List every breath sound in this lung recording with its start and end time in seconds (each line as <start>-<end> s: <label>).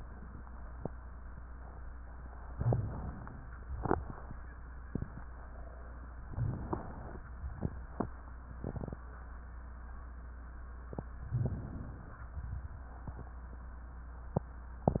2.54-3.44 s: inhalation
3.79-4.27 s: exhalation
6.26-7.21 s: inhalation
7.63-8.10 s: exhalation
11.35-12.18 s: inhalation
12.35-12.83 s: exhalation